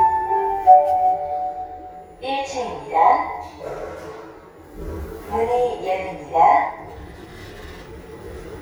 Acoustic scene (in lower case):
elevator